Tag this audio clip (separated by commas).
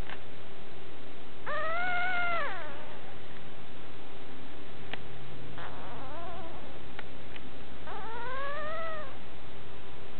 Whimper (dog), pets, Yip, Animal, Dog